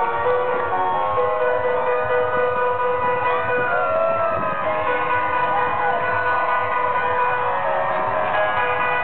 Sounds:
music

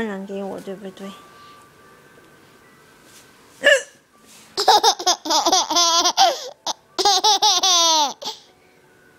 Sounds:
hiccup, speech

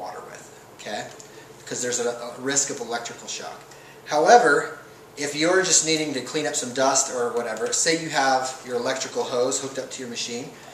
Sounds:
speech

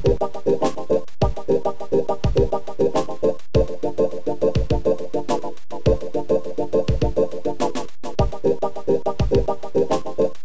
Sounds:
music, video game music

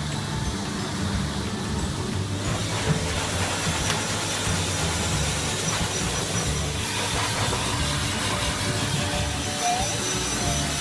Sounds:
music

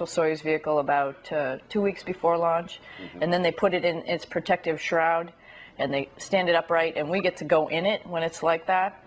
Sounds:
speech, inside a small room

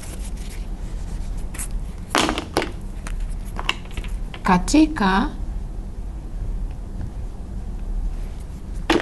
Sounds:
speech, inside a small room

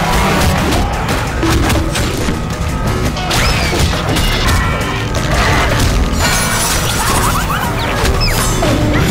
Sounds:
speech

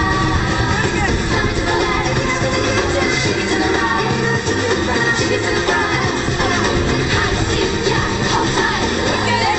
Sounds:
music, speech

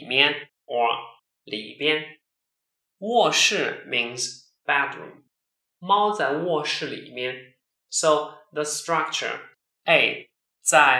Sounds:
inside a small room, speech

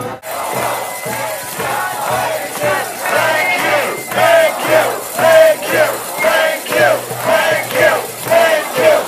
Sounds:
speech

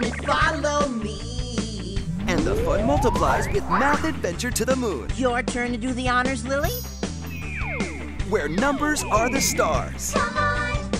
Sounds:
music, speech

